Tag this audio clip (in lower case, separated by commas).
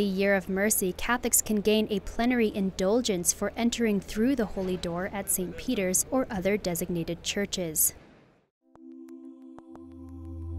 music, speech